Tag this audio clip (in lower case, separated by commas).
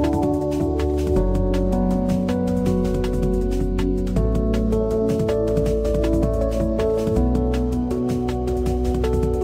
music